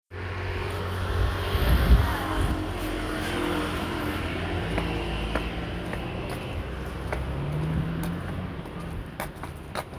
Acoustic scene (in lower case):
residential area